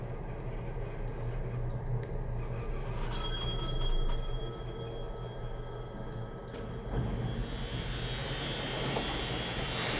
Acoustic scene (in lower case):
elevator